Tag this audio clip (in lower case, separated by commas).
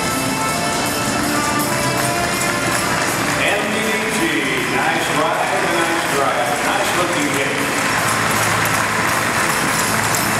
clip-clop, speech, animal, music, horse